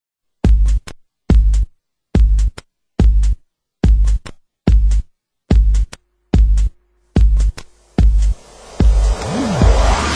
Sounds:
drum machine
music

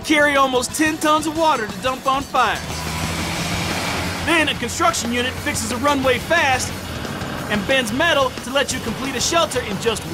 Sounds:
music
speech

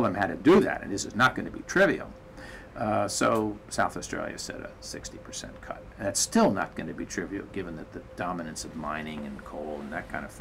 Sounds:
speech

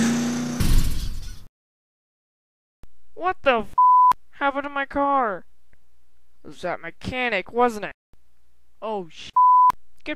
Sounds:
speech
car

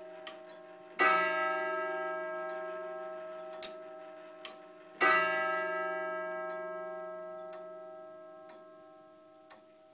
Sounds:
tick
tick-tock

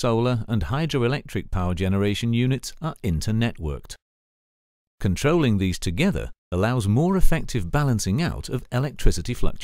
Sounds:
speech

